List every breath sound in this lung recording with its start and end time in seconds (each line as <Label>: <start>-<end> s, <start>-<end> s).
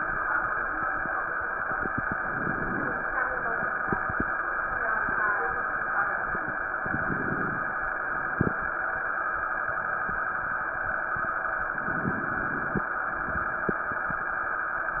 Inhalation: 2.15-3.02 s, 6.83-7.71 s, 11.90-12.87 s
Crackles: 2.15-3.02 s, 6.83-7.71 s, 11.90-12.87 s